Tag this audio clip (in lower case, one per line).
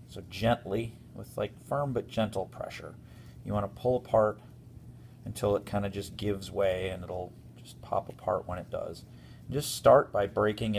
speech